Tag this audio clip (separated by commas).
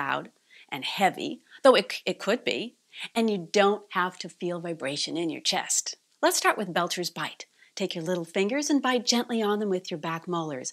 Speech